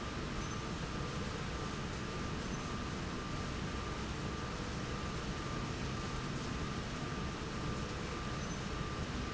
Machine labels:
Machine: slide rail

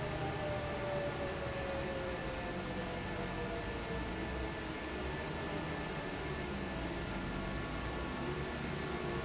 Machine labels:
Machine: fan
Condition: normal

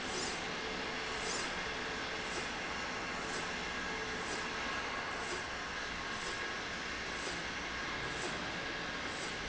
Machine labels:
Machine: slide rail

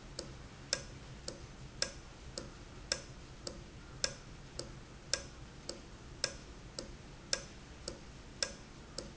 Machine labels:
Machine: valve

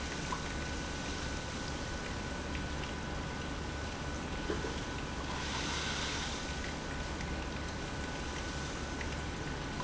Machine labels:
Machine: pump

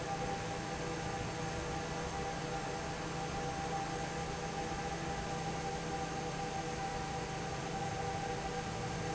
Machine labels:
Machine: fan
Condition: normal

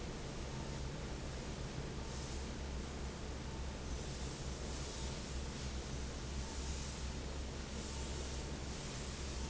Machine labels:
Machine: fan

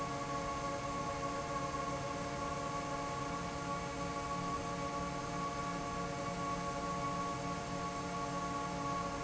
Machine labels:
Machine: fan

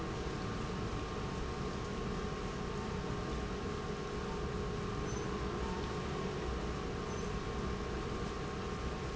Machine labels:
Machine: pump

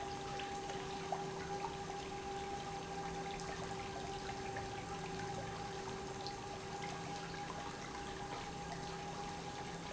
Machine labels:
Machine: pump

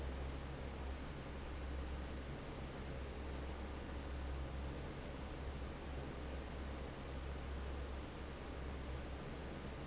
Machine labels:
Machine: fan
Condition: normal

